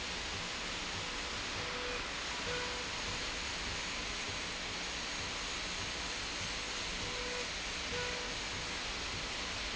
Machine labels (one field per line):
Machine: slide rail